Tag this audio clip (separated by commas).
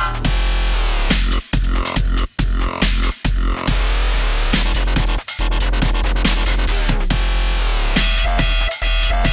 Dubstep, Music, Electronic music